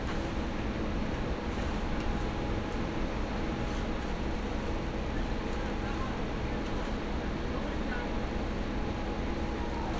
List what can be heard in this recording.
person or small group talking